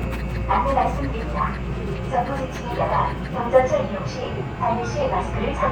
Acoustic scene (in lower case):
subway train